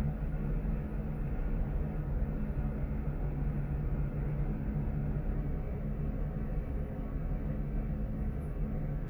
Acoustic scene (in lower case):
elevator